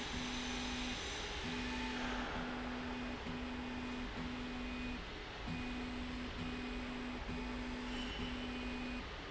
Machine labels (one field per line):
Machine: slide rail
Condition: normal